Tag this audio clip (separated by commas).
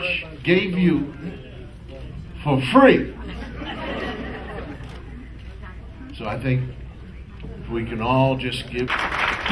Speech